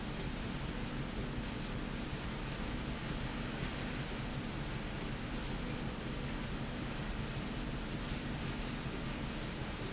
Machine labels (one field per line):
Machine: slide rail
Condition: normal